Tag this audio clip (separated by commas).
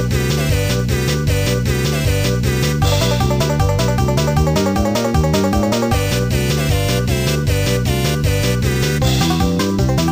Music